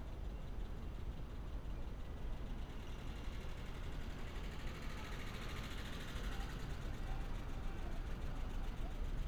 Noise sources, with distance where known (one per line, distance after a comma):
background noise